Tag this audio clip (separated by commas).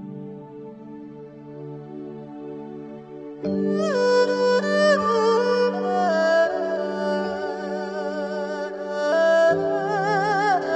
Music